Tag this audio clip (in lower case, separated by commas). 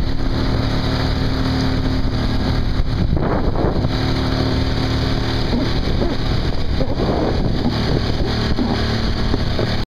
vehicle